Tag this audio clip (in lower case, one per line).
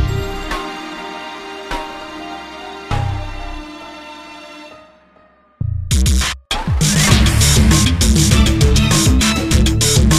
music